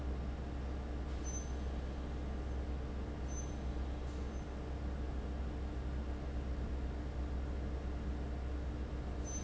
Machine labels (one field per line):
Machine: fan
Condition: abnormal